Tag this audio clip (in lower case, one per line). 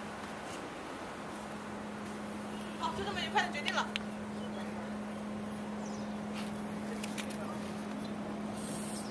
speech